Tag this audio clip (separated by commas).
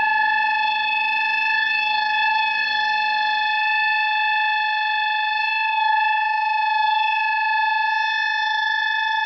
Air horn